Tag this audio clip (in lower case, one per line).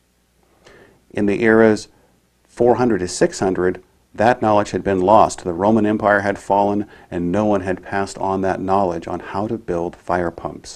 speech